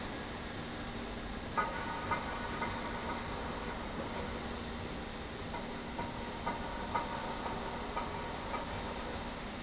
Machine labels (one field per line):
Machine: slide rail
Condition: normal